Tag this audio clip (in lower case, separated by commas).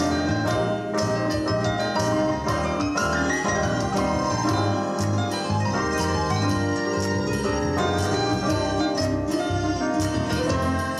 music, rhythm and blues